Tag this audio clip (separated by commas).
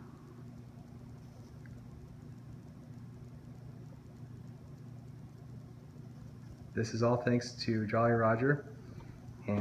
Speech